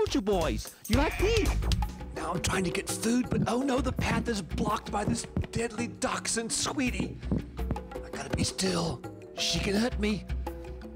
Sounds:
Music, Speech

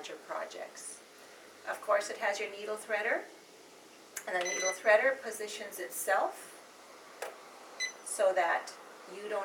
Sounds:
Speech, inside a small room

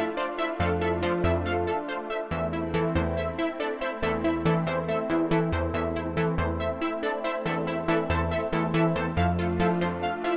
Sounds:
Electronic music, Music, Electronica

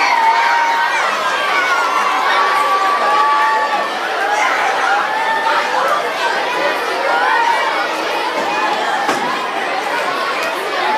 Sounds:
Speech

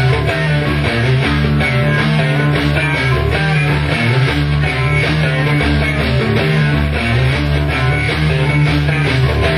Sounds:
Plucked string instrument, Music, Bass guitar, Strum, Guitar, Musical instrument

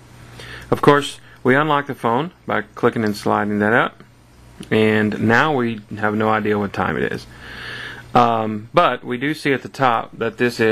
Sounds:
Speech

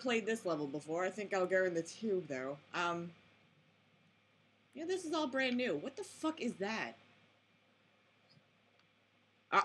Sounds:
Speech

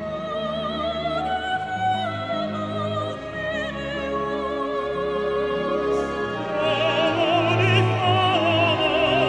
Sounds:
Music

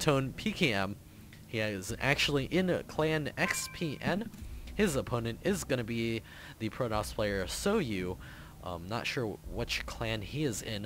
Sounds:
Speech

